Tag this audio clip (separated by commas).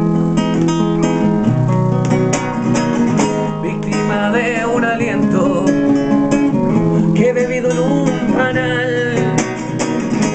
Music